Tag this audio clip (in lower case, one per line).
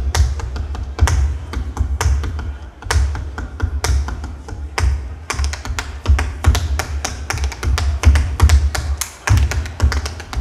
tap dancing